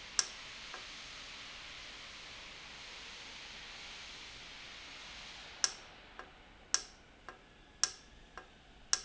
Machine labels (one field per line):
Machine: valve